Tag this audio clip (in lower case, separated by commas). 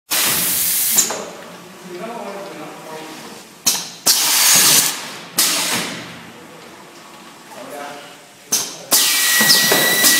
inside a small room, speech